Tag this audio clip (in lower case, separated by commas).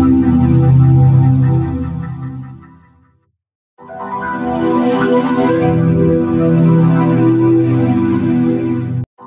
music, electronic organ